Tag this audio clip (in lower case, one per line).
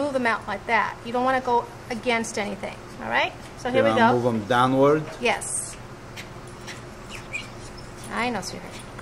speech